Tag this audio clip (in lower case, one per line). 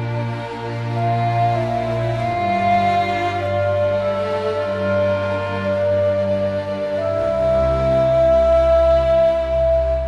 theme music
music